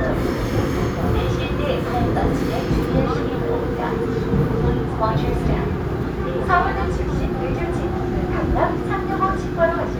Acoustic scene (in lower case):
subway train